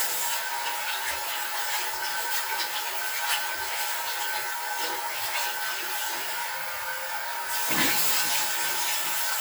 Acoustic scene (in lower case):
restroom